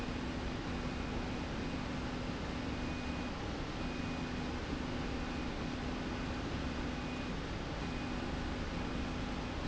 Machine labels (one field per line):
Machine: slide rail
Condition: normal